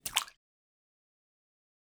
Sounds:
Splash, Liquid

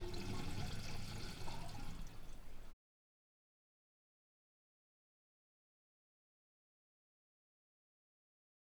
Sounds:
home sounds, Sink (filling or washing)

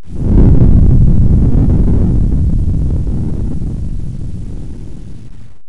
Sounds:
Fire

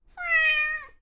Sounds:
Animal, Cat, Domestic animals, Meow

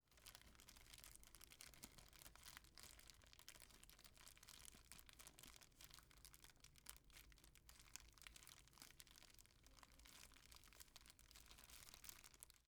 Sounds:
Crumpling

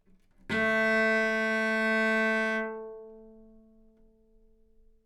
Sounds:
Music, Musical instrument, Bowed string instrument

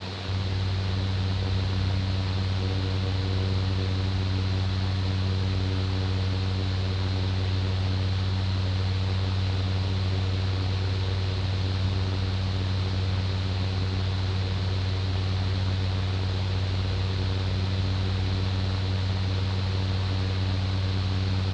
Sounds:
Mechanical fan, Mechanisms

